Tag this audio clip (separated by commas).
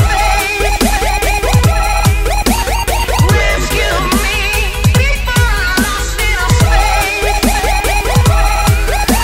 Dubstep, Music, Soundtrack music, Electronic music